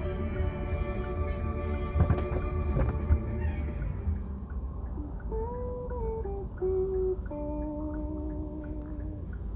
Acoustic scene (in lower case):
car